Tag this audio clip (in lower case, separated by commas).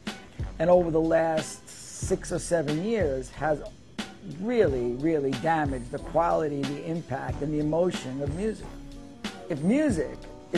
music, speech